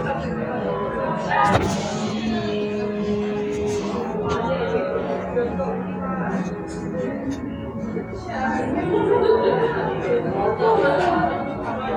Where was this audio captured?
in a cafe